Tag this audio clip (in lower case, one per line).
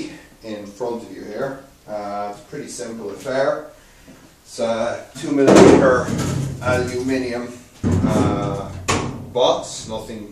speech